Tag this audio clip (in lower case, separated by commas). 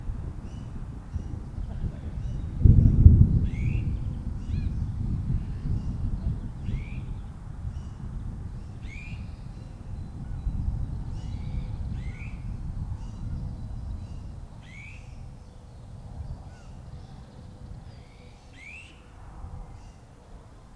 thunder, thunderstorm